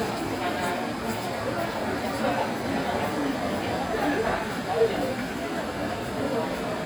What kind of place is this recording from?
crowded indoor space